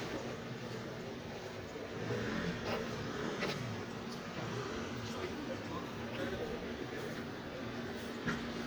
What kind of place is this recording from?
residential area